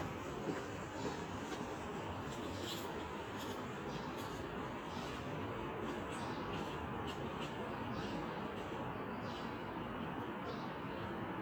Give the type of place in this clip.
residential area